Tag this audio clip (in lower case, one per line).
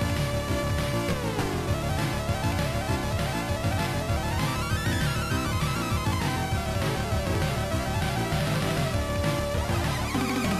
music